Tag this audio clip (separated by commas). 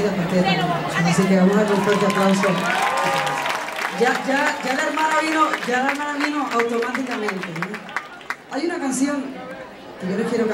Speech